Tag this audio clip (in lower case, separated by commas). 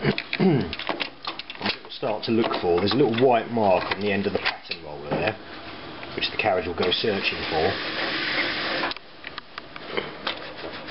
printer, speech, inside a small room